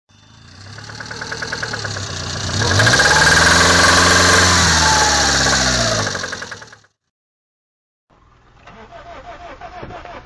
A knocking engine revving up, shutting off and trying to be started